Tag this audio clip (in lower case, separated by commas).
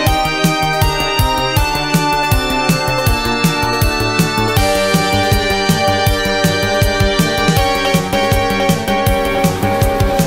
music